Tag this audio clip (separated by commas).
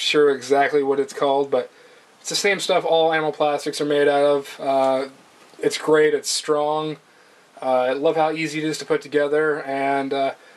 Speech, inside a small room